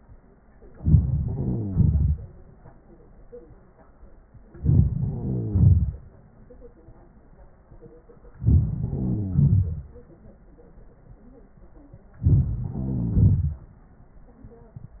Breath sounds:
0.79-1.04 s: inhalation
1.03-2.36 s: exhalation
1.03-2.36 s: crackles
4.56-4.91 s: inhalation
4.88-6.13 s: exhalation
4.88-6.13 s: crackles
8.41-8.69 s: inhalation
8.70-9.91 s: exhalation
8.70-9.91 s: crackles
12.18-12.46 s: inhalation
12.45-13.64 s: exhalation
12.45-13.64 s: crackles

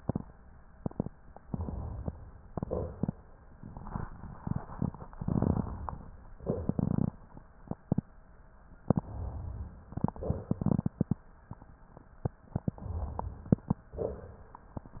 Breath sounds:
1.48-2.21 s: inhalation
2.49-3.18 s: exhalation
5.12-6.25 s: inhalation
6.36-7.18 s: exhalation
8.84-9.88 s: inhalation
12.55-13.82 s: inhalation

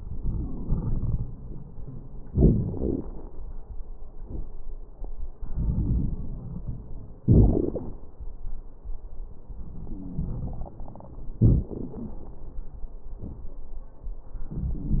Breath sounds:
0.00-1.33 s: inhalation
0.00-1.33 s: crackles
2.33-3.42 s: exhalation
2.33-3.42 s: crackles
5.42-7.20 s: inhalation
5.42-7.20 s: crackles
7.24-7.97 s: exhalation
7.24-7.97 s: crackles
9.87-10.27 s: wheeze
9.87-11.36 s: inhalation
11.43-12.34 s: exhalation
11.43-12.34 s: crackles
14.46-15.00 s: inhalation
14.46-15.00 s: crackles

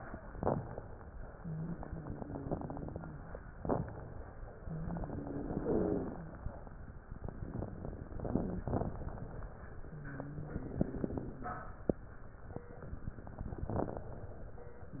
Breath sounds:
1.34-3.36 s: exhalation
1.34-3.36 s: wheeze
3.60-4.53 s: inhalation
4.60-6.47 s: exhalation
4.60-6.47 s: wheeze
8.24-9.03 s: inhalation
9.88-11.75 s: exhalation
9.88-11.75 s: wheeze
13.40-14.04 s: crackles
13.40-14.46 s: inhalation
14.94-15.00 s: exhalation
14.94-15.00 s: wheeze

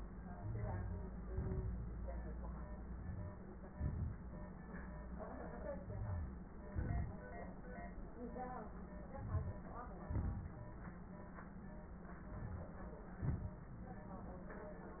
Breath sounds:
0.33-1.25 s: inhalation
0.33-1.25 s: crackles
1.26-2.00 s: exhalation
1.26-2.00 s: crackles
2.88-3.67 s: inhalation
3.67-4.20 s: exhalation
3.67-4.20 s: crackles
5.80-6.53 s: inhalation
5.80-6.53 s: wheeze
6.52-7.29 s: exhalation
6.52-7.29 s: crackles
9.06-9.97 s: crackles
9.09-9.99 s: inhalation
9.99-10.96 s: exhalation
9.99-10.96 s: crackles
12.20-13.14 s: inhalation
12.20-13.14 s: crackles
13.14-13.74 s: exhalation

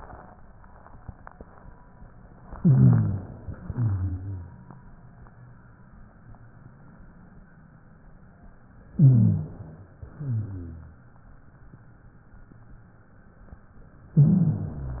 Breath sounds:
2.54-3.28 s: rhonchi
2.56-3.59 s: inhalation
3.62-4.75 s: exhalation
3.62-4.75 s: rhonchi
8.96-9.96 s: inhalation
8.96-9.96 s: rhonchi
10.11-11.12 s: exhalation
10.11-11.12 s: rhonchi
14.17-15.00 s: inhalation
14.17-15.00 s: rhonchi

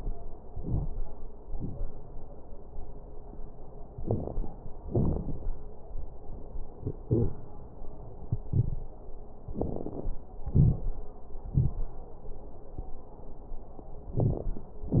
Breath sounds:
0.45-0.89 s: inhalation
0.45-0.89 s: crackles
1.43-1.87 s: exhalation
1.43-1.87 s: crackles
3.92-4.50 s: inhalation
3.92-4.50 s: crackles
4.84-5.42 s: exhalation
4.84-5.42 s: crackles
9.48-10.22 s: inhalation
9.48-10.22 s: crackles
10.47-10.99 s: exhalation
10.47-10.99 s: crackles

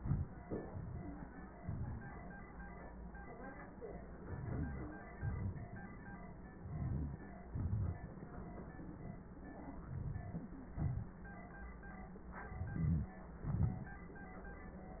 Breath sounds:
0.90-1.28 s: stridor
4.17-5.08 s: inhalation
4.27-4.98 s: wheeze
5.10-6.05 s: exhalation
5.10-6.05 s: crackles
6.56-7.41 s: inhalation
6.61-7.20 s: wheeze
7.42-8.24 s: exhalation
7.42-8.24 s: crackles
9.81-10.64 s: inhalation
9.81-10.64 s: crackles
10.66-11.45 s: exhalation
12.45-13.36 s: inhalation
12.53-13.36 s: wheeze
13.37-14.11 s: exhalation
13.37-14.11 s: crackles

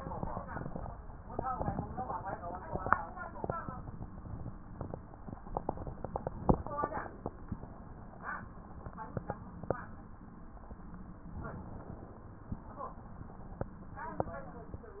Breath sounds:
5.43-6.51 s: inhalation
6.50-7.50 s: exhalation
11.41-12.58 s: inhalation
12.58-13.67 s: exhalation

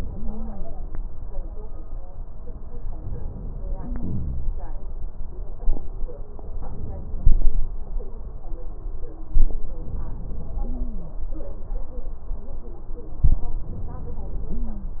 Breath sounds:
0.11-0.66 s: stridor
3.71-4.54 s: wheeze
6.57-7.78 s: inhalation
9.89-10.76 s: inhalation
10.60-11.20 s: stridor
13.70-14.56 s: inhalation
14.43-15.00 s: stridor

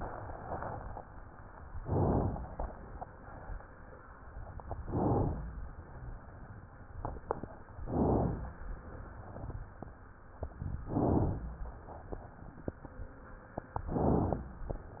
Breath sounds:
1.76-2.58 s: inhalation
4.80-5.45 s: inhalation
7.87-8.58 s: inhalation
10.85-11.56 s: inhalation
13.95-14.65 s: inhalation

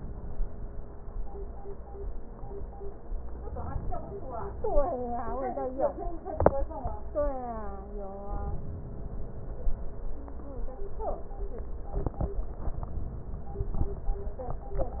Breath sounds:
3.49-4.99 s: inhalation
8.32-9.82 s: inhalation

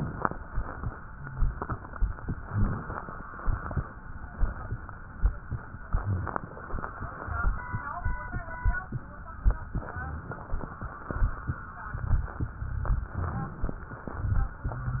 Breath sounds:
2.35-3.19 s: inhalation
2.43-2.83 s: rhonchi
6.00-6.83 s: inhalation
6.01-6.42 s: rhonchi
9.83-10.66 s: inhalation
9.90-10.30 s: rhonchi
13.17-13.57 s: rhonchi
13.17-14.00 s: inhalation

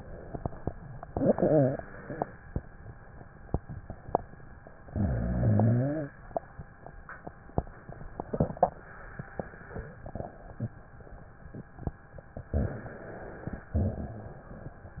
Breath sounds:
1.01-2.15 s: inhalation
1.01-2.15 s: rhonchi
4.90-6.15 s: inhalation
4.90-6.15 s: rhonchi
12.45-13.19 s: rhonchi
12.48-13.74 s: inhalation
13.74-14.48 s: rhonchi
13.74-14.99 s: exhalation

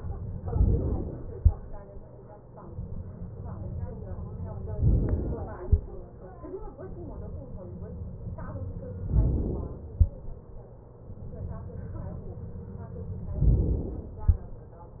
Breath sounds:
0.22-1.20 s: inhalation
4.72-5.71 s: inhalation
9.06-10.00 s: inhalation
13.29-14.22 s: inhalation

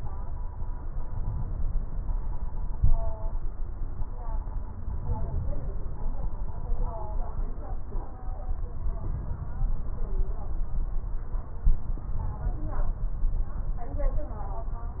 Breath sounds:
0.77-2.22 s: inhalation
4.77-5.97 s: inhalation

